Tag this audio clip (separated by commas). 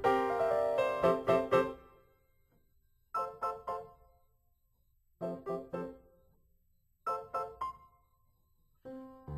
Music